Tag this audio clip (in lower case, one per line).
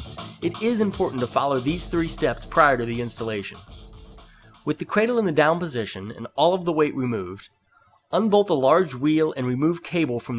music
speech